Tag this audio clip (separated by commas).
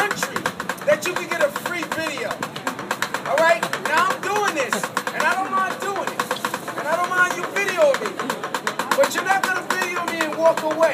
Music, Speech